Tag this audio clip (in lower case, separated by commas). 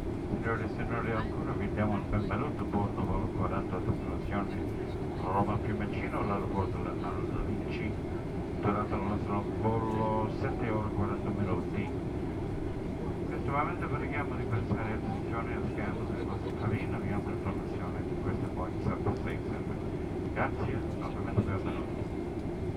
vehicle, airplane, aircraft